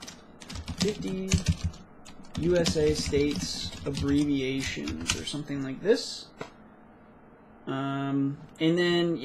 A man types and speaks